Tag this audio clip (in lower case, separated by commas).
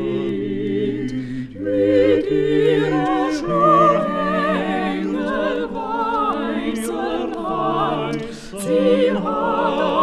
music